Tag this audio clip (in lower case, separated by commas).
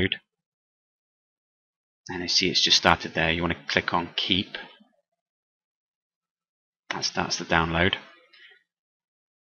speech